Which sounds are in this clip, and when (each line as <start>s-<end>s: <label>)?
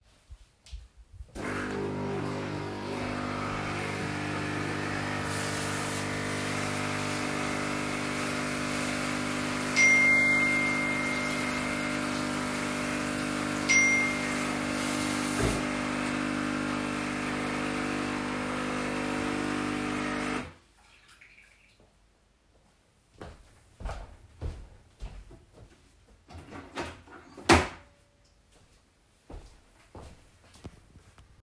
1.2s-20.6s: coffee machine
5.1s-15.5s: running water
9.8s-11.1s: phone ringing
13.7s-14.7s: phone ringing
23.2s-25.6s: footsteps
29.2s-30.9s: footsteps